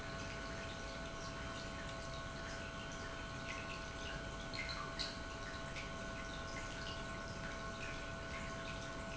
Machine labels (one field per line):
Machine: pump